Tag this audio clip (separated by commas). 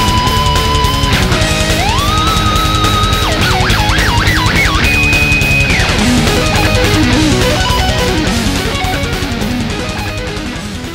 Music, Sampler